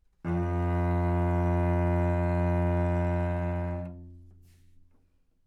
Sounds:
music, bowed string instrument, musical instrument

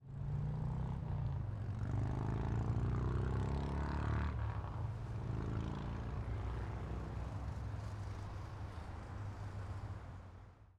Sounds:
motor vehicle (road), vehicle, motorcycle

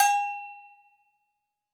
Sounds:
bell

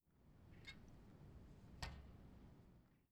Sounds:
vehicle, bicycle

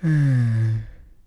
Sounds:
sigh, human voice

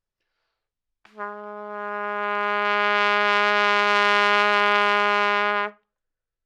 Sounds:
music, musical instrument, trumpet, brass instrument

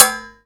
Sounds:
dishes, pots and pans, domestic sounds

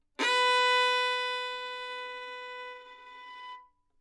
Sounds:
bowed string instrument, music, musical instrument

